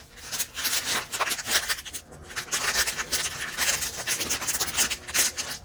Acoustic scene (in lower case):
kitchen